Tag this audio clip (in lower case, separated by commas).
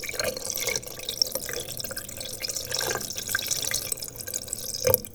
water, faucet, home sounds